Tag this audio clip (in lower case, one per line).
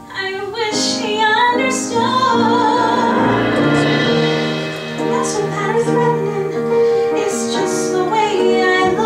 singing
inside a public space
inside a large room or hall
music